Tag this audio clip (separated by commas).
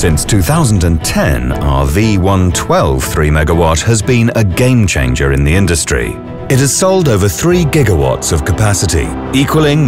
Speech, Music